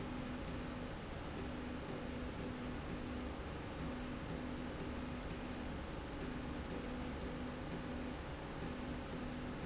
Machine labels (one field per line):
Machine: slide rail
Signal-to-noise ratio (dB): 0 dB